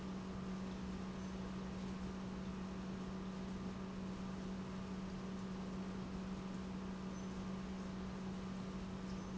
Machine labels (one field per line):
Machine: pump